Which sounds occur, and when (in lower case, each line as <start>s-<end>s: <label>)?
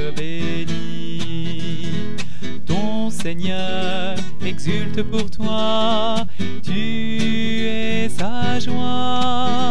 0.0s-2.1s: male singing
0.0s-9.7s: music
2.2s-2.4s: breathing
2.6s-6.2s: male singing
6.3s-6.4s: breathing
6.6s-9.7s: male singing